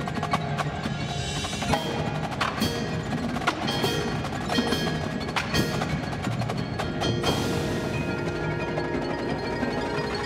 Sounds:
mallet percussion, marimba, glockenspiel

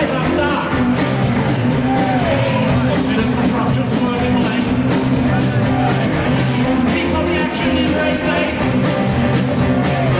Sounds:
speech, music

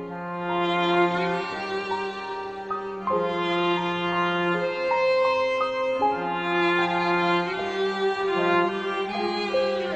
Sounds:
fiddle, music

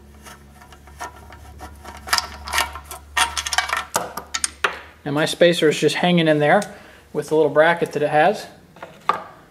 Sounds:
speech

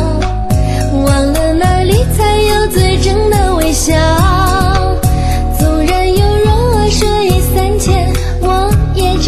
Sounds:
music

